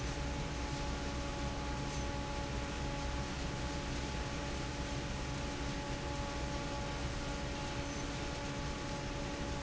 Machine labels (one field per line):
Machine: fan